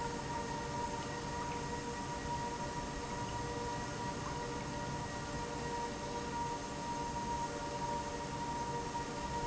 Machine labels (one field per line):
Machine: pump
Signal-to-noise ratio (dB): -6 dB